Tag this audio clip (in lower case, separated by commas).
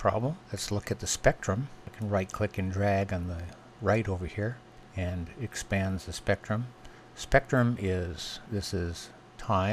speech